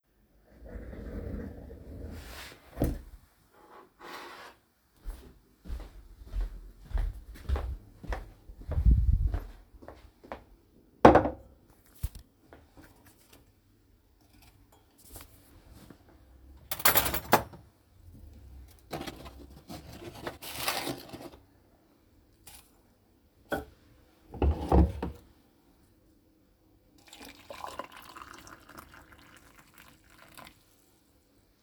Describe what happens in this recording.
I move myself away from the table on a chair, stand up from the chair, take a cup from the table, walk to the kitchen, put the cup on the counter, take a tea bag, put it into the cup, take a tea spoon, put some sugar into the cup, take the kettle and pour some hot water into the cup.